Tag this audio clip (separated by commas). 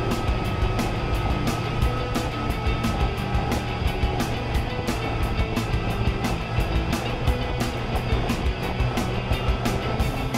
speedboat, Vehicle, Music